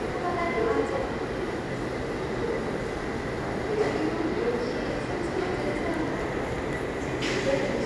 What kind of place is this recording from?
subway station